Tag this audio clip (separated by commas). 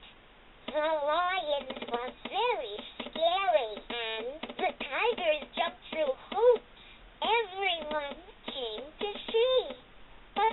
Speech